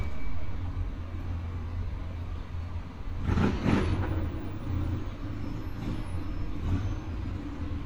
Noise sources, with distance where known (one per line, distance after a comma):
medium-sounding engine, near